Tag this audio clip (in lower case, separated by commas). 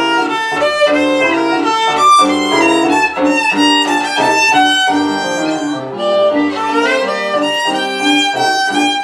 musical instrument, music, violin